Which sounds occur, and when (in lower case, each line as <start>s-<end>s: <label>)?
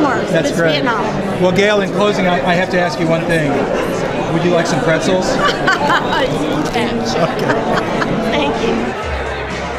0.0s-1.1s: man speaking
0.0s-8.7s: conversation
0.0s-9.7s: crowd
1.4s-3.6s: man speaking
4.1s-5.6s: man speaking
5.4s-6.4s: giggle
6.0s-6.3s: man speaking
6.1s-6.7s: man speaking
7.1s-7.5s: man speaking
8.3s-8.8s: man speaking